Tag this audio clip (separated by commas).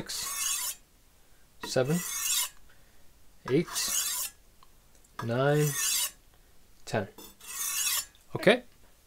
sharpen knife